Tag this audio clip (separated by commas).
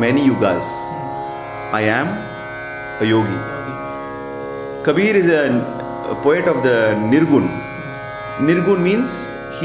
Speech, Classical music, Music